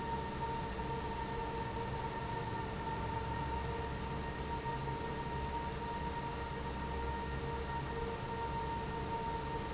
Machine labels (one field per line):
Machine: fan